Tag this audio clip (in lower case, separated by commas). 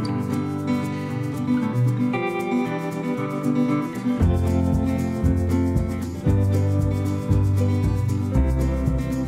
music